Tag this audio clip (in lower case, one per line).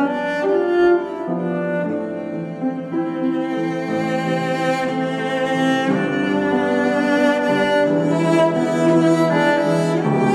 playing cello